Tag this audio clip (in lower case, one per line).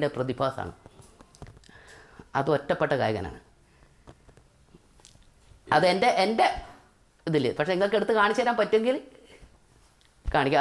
inside a small room
speech